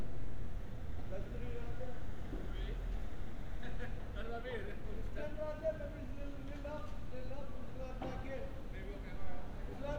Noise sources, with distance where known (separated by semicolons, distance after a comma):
person or small group talking